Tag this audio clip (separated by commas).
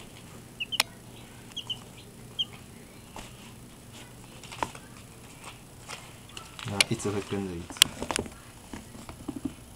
Speech, Bird